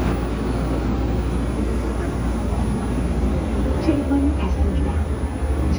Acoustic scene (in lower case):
subway train